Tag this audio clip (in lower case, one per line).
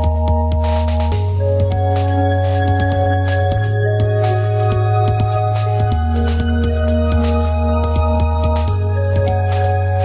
music